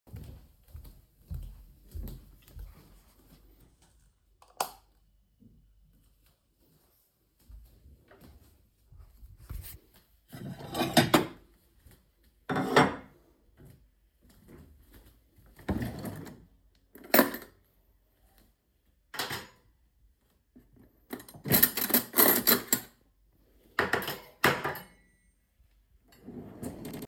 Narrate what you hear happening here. I walked to the kitchen, turned on the light and took out dishes and cutlery from different drawers.